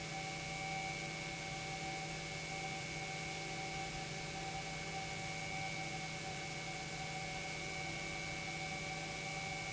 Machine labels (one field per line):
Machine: pump